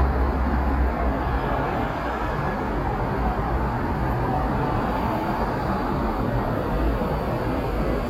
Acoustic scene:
street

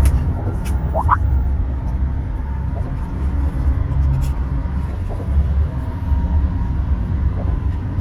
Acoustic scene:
car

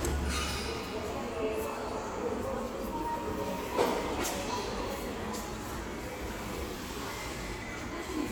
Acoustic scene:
subway station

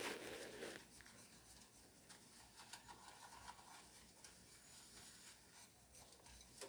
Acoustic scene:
kitchen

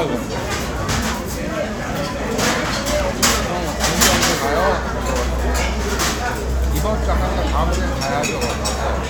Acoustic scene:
restaurant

